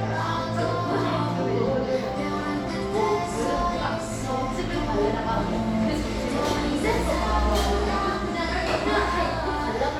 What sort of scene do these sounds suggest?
cafe